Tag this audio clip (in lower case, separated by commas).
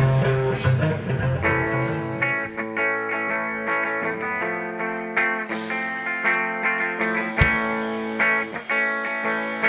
music